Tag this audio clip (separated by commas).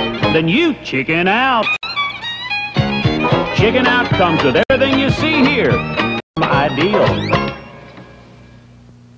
Music, Speech